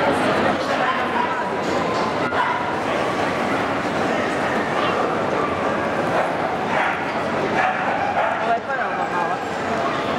Muffled barks of dogs can be heard in a crowded room with many people talking